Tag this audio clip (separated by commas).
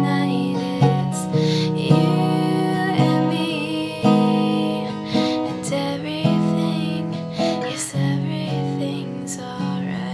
Guitar, Music